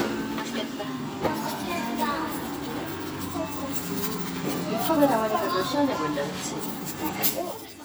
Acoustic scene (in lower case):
cafe